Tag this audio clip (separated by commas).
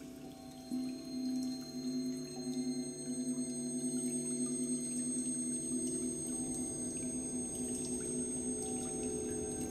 New-age music